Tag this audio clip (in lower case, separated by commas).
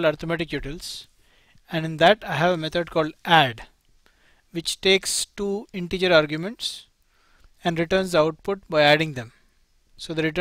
speech